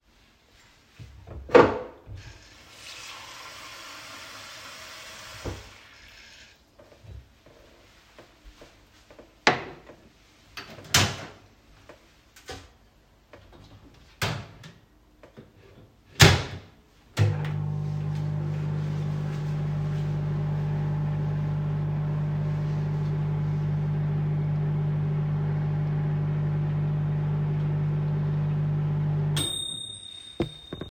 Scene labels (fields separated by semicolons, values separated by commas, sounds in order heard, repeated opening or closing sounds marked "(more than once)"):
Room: kitchen; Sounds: wardrobe or drawer, running water, door (more than once), microwave